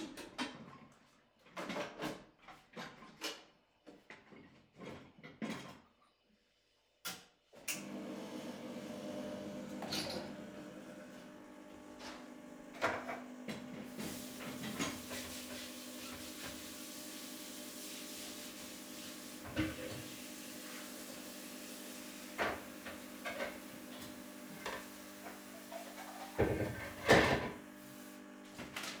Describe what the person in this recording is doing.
person filling the dishwasher. Coffeemachine being turned on. Running tapwater